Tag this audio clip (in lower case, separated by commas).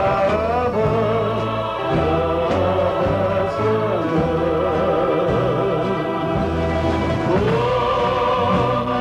gospel music, music, singing